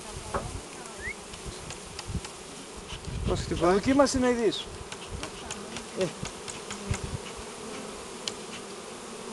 Insects buzzing while a man speaks and then a clicking